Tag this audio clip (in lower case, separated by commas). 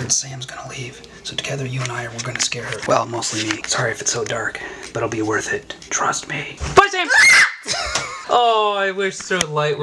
screaming